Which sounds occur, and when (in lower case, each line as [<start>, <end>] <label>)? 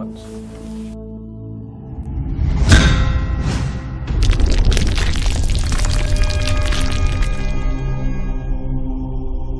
[0.00, 9.55] music
[1.76, 7.33] sound effect